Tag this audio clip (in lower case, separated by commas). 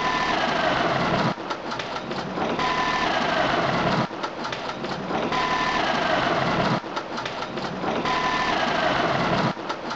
idling, engine